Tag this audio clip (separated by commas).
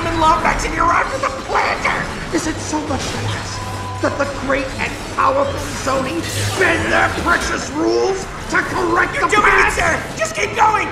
Music, Speech